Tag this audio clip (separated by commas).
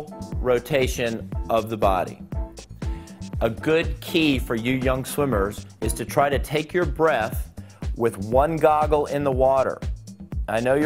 Speech, Music